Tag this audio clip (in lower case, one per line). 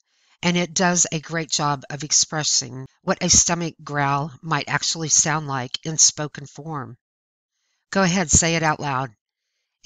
speech